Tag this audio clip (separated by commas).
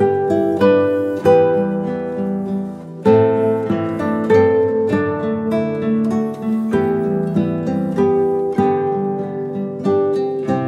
Music